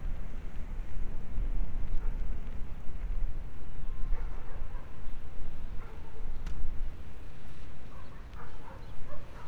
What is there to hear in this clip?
background noise